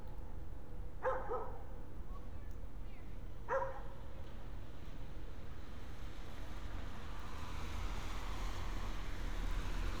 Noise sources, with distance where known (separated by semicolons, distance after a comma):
medium-sounding engine; dog barking or whining, near